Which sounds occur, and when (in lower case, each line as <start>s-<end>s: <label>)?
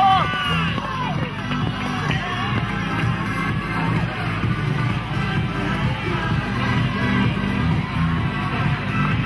0.0s-9.2s: crowd
0.0s-9.2s: music
0.1s-9.2s: run